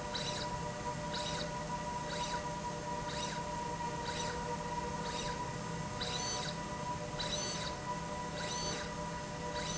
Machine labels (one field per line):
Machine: slide rail